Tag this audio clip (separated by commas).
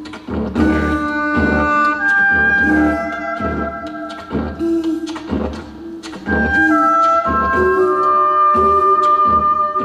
Music, Didgeridoo, Musical instrument